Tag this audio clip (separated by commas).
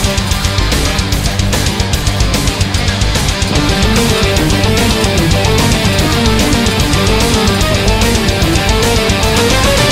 Music